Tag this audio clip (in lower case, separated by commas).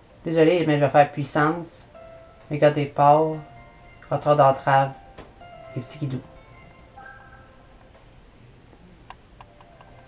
music, speech